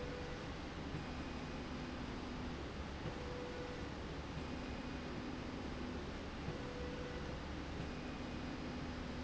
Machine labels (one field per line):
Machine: slide rail